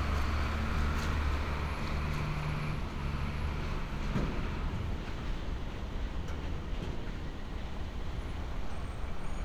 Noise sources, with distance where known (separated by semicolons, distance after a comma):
large-sounding engine